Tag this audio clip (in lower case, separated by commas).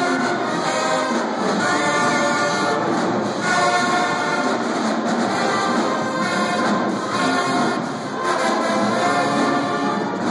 music